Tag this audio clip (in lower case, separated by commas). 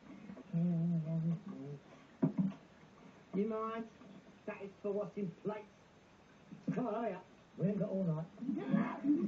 speech